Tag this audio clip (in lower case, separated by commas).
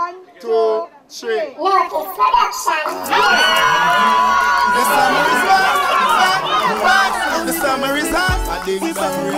music, hip hop music, speech